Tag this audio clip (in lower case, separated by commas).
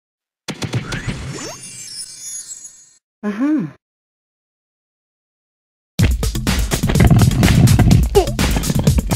speech, music